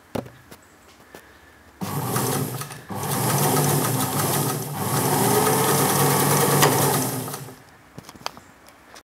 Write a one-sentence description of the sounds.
A sewing machine revs up and then down